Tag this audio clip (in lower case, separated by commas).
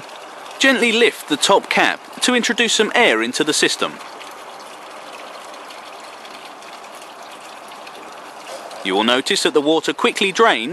speech, outside, urban or man-made